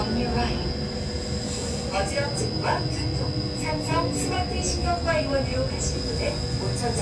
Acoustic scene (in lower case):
subway train